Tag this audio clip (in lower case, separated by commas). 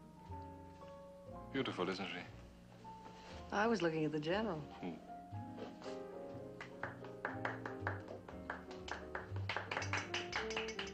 speech, music